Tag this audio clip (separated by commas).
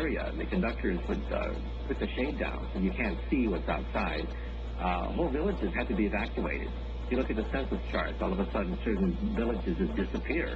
Speech